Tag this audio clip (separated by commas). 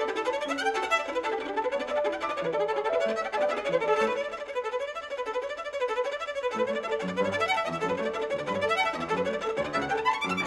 Music, Musical instrument, fiddle